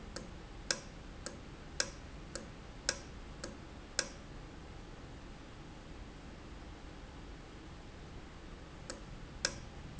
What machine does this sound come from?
valve